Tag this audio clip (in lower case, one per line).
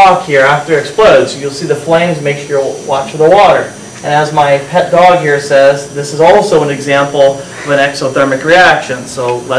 speech